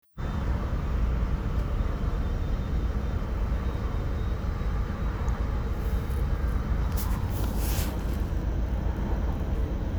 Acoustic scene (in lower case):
car